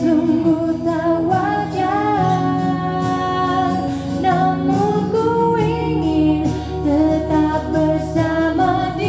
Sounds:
Music, Singing, inside a large room or hall

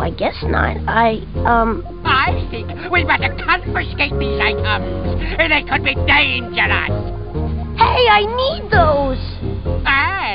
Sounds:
Music, Speech, outside, rural or natural

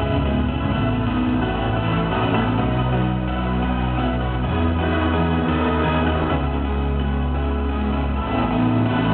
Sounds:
Music

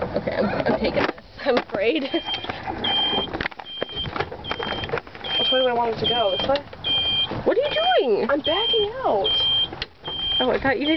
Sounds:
Speech

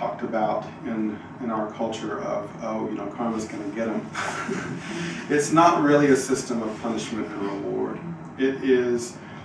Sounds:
Speech

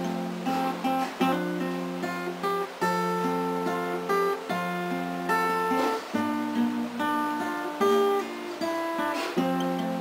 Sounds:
Music, Strum, Acoustic guitar, Plucked string instrument, Musical instrument, Guitar

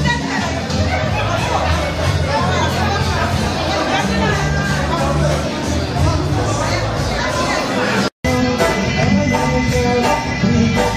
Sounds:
Speech, Music

